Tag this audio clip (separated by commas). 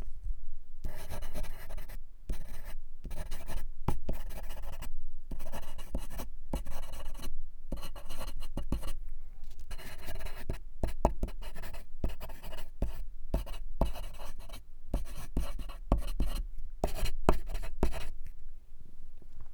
Domestic sounds, Writing